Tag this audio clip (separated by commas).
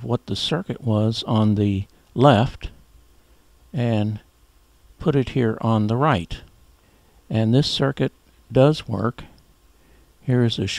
Speech